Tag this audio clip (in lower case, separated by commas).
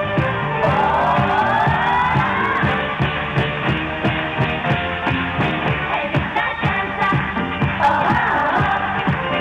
singing, music, inside a large room or hall